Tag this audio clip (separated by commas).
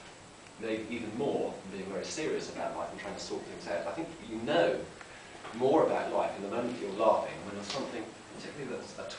Speech